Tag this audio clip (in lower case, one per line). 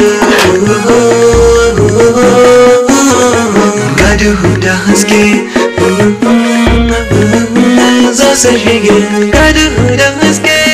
music